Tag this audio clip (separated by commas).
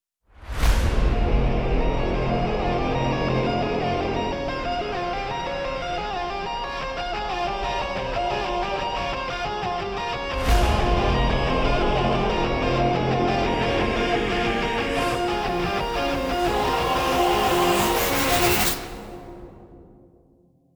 Human voice, Musical instrument, Music, Singing